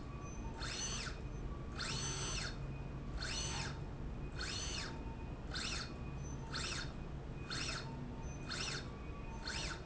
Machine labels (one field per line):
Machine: slide rail